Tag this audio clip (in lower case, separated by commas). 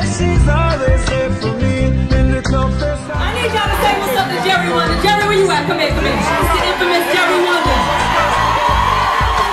speech, music